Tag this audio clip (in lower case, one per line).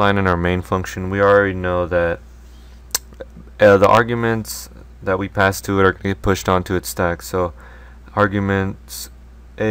speech